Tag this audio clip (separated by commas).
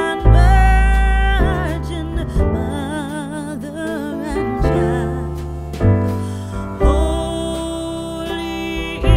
Music